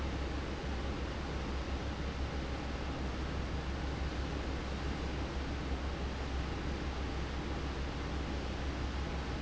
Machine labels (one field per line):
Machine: fan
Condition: abnormal